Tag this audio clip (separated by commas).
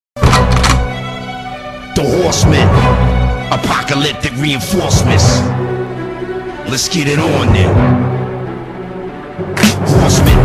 Speech, Music